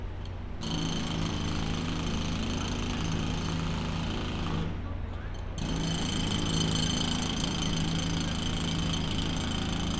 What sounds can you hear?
jackhammer, large crowd